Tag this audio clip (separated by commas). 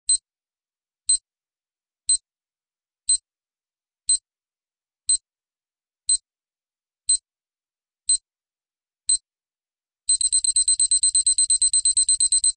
Alarm